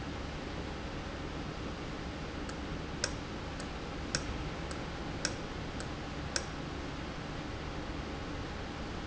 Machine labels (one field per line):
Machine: valve